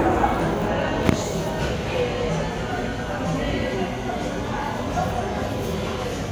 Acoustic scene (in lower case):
crowded indoor space